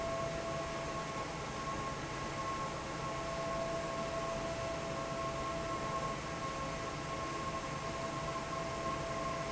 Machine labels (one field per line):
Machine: fan